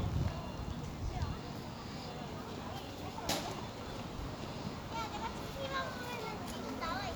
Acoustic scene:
residential area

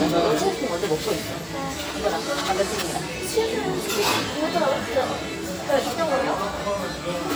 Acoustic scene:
restaurant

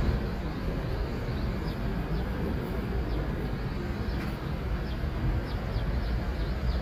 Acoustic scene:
street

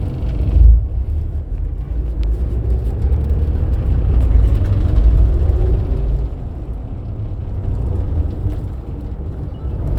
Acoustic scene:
bus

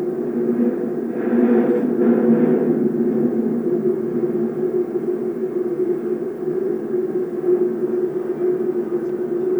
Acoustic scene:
subway train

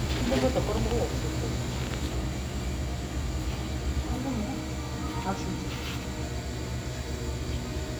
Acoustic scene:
cafe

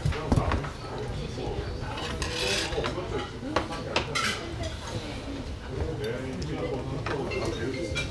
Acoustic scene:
restaurant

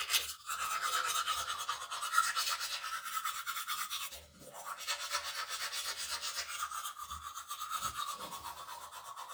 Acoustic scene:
restroom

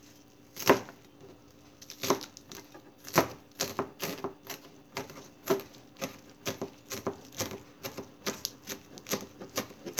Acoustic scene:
kitchen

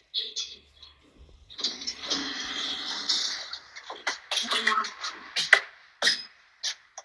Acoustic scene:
elevator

